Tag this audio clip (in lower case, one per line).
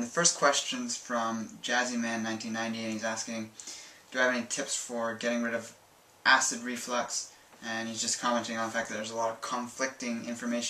speech